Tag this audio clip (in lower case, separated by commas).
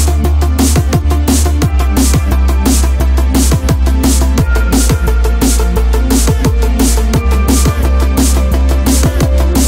music